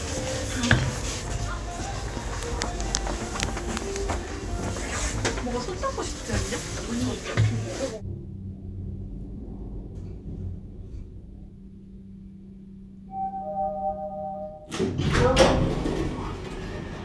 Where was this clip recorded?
in an elevator